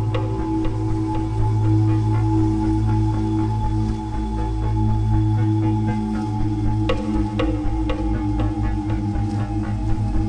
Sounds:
music, bee or wasp, insect

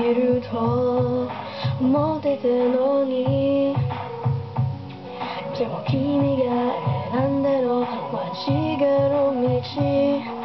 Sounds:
music, female singing

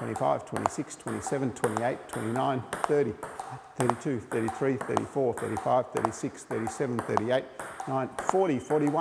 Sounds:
playing table tennis

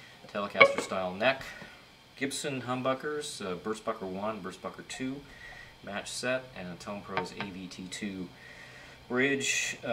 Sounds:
music, plucked string instrument, musical instrument, electric guitar, speech, guitar

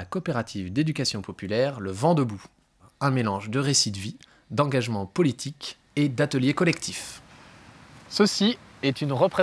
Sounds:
speech

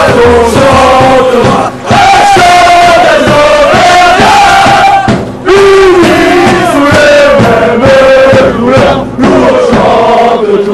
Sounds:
mantra, music

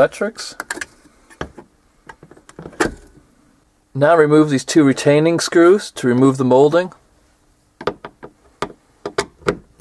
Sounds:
speech

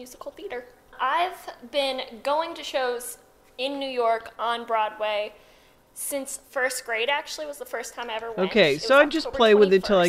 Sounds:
female speech

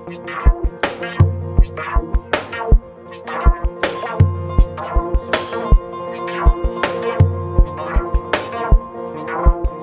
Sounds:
music

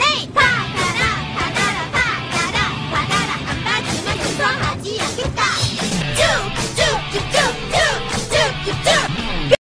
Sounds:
music

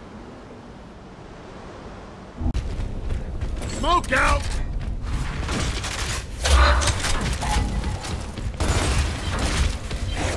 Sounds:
speech

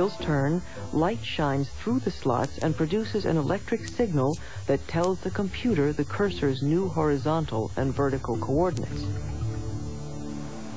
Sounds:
speech, music

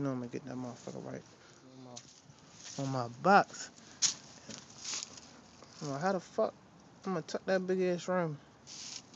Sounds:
speech

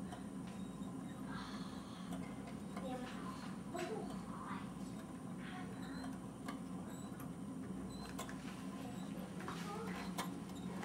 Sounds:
tick-tock, tick, speech

